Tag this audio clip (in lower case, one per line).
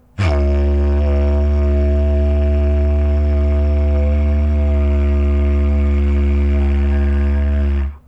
music
musical instrument